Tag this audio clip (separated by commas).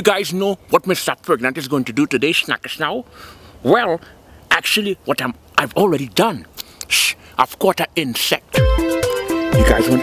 Music, Speech